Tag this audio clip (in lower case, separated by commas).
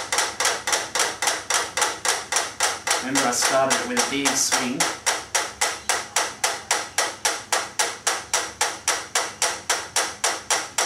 speech, inside a small room